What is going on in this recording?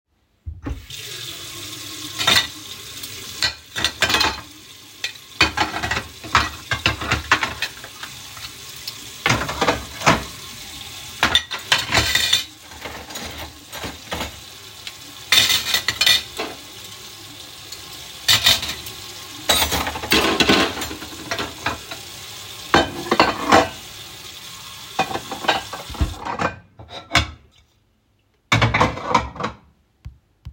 Opened the faucet, let the water run while I rearranged and washed a few plates of varying sizes and some cutlery, then turned on the faucet and finished putting everything back to their place.